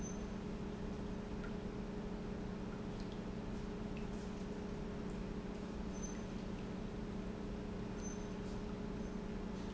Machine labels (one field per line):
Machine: pump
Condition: normal